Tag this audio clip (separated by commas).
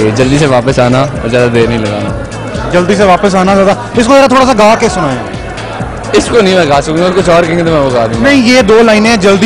Music, Speech